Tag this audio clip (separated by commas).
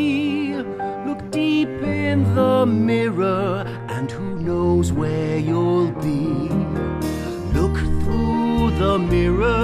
Music